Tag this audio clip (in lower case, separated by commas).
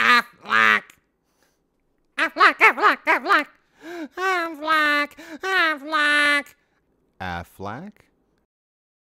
quack, animal, speech, duck